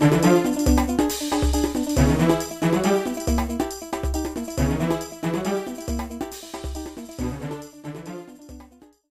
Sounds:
music

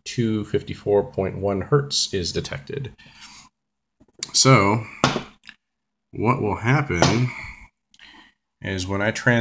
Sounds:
speech

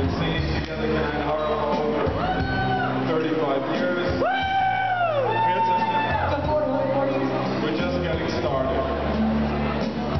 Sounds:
music, speech

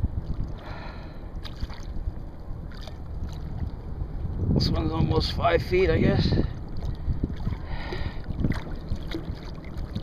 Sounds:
speech

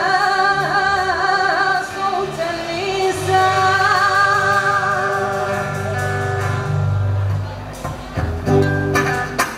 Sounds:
music

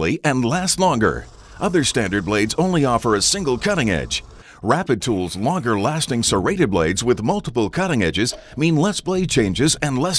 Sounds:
speech, tools

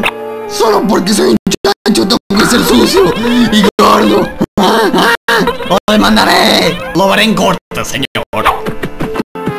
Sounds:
music, speech

